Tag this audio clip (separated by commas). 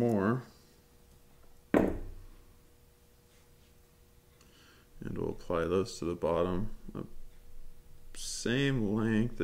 Speech